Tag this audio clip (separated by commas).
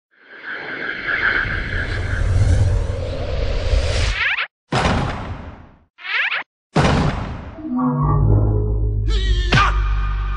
thwack